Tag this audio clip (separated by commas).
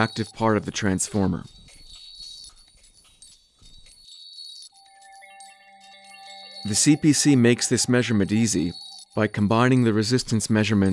Speech, Music